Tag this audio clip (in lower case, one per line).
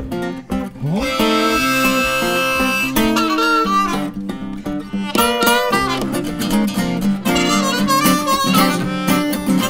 playing harmonica